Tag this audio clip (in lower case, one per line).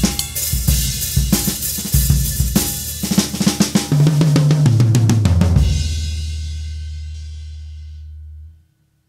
speech
cymbal
percussion
hi-hat
music
snare drum
drum
bass drum
drum kit
musical instrument